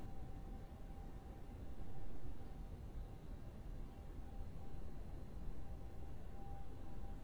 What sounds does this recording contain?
background noise